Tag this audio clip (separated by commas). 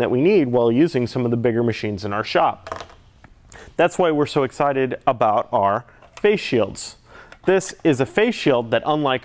Speech